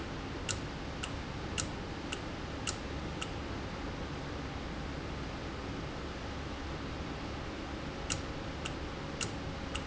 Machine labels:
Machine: valve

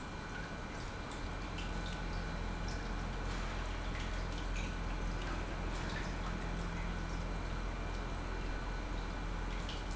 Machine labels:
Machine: pump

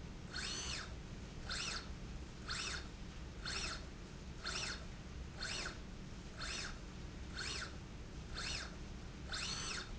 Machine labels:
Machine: slide rail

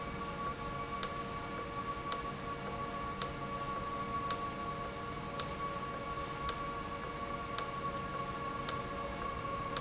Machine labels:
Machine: valve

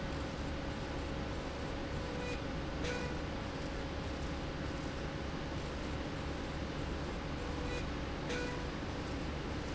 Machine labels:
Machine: slide rail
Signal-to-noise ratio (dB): -6 dB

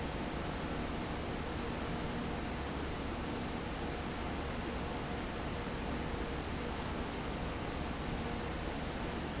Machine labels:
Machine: fan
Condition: abnormal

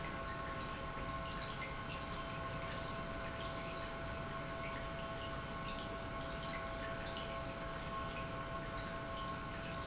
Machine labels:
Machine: pump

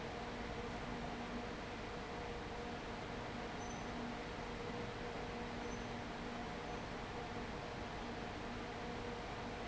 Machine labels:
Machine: fan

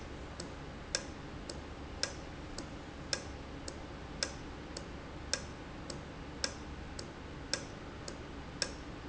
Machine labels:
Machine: valve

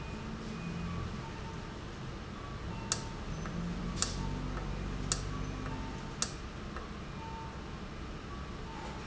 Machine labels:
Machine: valve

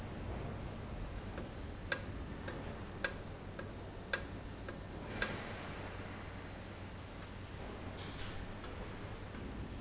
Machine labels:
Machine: valve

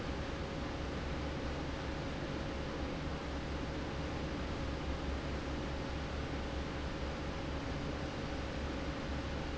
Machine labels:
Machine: fan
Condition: normal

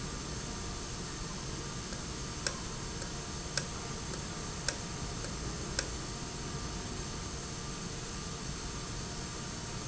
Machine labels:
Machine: valve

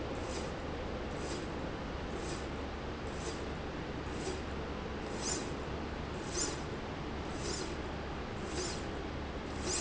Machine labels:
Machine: slide rail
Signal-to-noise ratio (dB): -6 dB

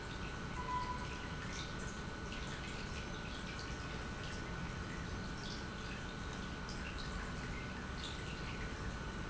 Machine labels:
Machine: pump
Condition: normal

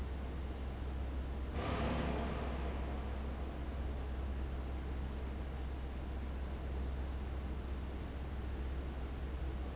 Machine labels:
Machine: fan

